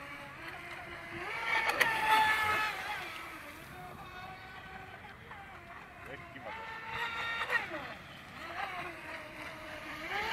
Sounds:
Boat, Vehicle, speedboat, Speech

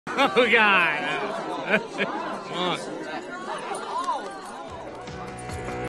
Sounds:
Speech

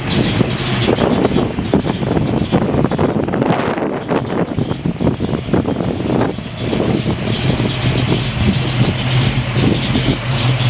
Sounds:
Car, Vehicle

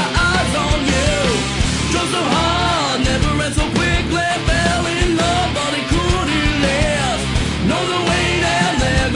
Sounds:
Music

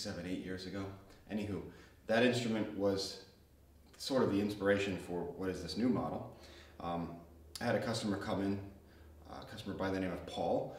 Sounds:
Speech

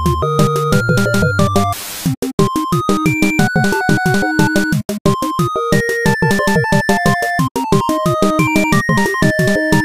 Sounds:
Video game music

